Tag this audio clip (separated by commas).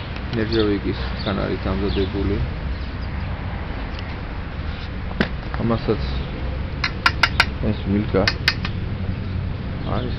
Speech, outside, rural or natural